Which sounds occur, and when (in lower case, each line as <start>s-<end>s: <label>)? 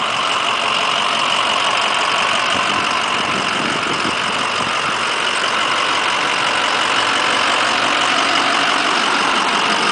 0.0s-9.9s: car
0.0s-9.9s: engine knocking